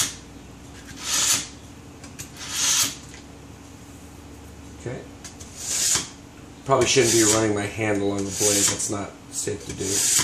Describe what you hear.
Metal scraping is present, and an adult male speaks